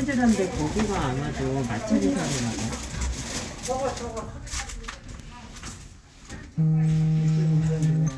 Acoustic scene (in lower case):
elevator